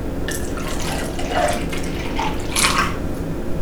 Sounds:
liquid

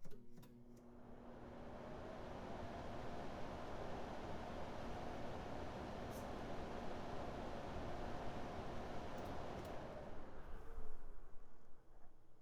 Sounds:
mechanisms

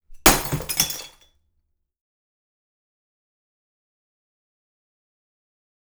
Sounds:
glass
shatter

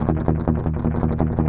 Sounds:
plucked string instrument
strum
guitar
music
musical instrument

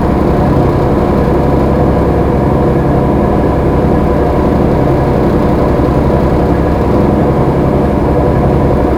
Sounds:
vehicle
engine
boat

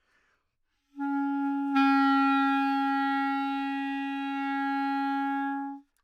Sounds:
wind instrument
musical instrument
music

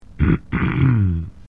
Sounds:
respiratory sounds
cough

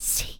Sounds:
human voice
whispering

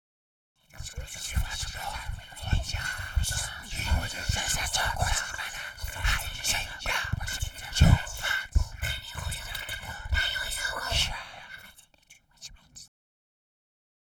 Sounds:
human voice
whispering

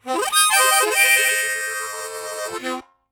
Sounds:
musical instrument
music
harmonica

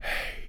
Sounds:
whispering
human voice

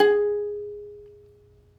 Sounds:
plucked string instrument
musical instrument
music

